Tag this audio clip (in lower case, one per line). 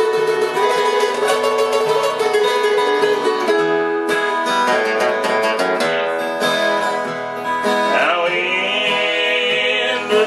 singing
music
guitar
country
plucked string instrument
musical instrument